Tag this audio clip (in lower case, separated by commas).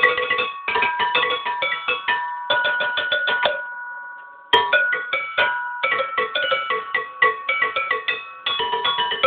music, musical instrument, percussion